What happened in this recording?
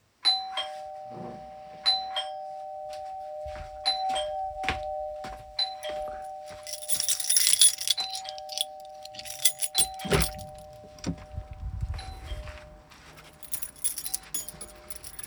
The doorbell rang continuously while I walked to the door, picked up my keys, opened the door and moved the keys again. (has polyphony)